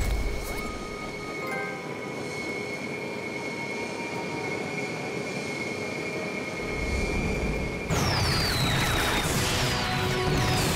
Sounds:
Music

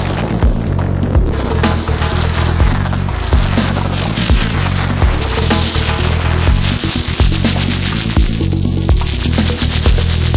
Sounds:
Music, Electronic music

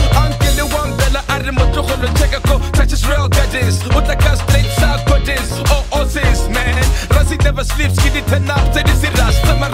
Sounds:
Music

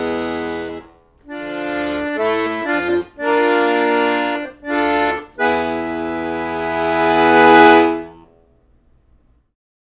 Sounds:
Music, Accordion, Musical instrument

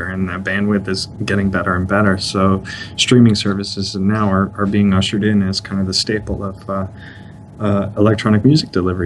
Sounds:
Speech

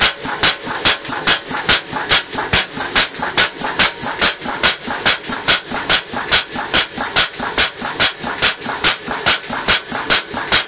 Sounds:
hammering nails

